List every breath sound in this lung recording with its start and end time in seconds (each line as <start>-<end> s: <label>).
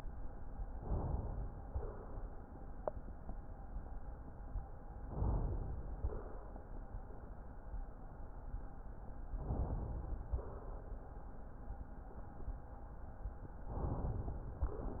0.79-1.66 s: inhalation
1.67-2.52 s: exhalation
5.10-5.97 s: inhalation
5.96-6.68 s: exhalation
9.37-10.28 s: inhalation
10.26-10.99 s: exhalation
13.73-14.60 s: inhalation